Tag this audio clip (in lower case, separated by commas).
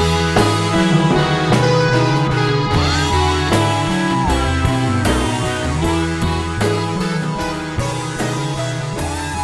music, synthesizer, musical instrument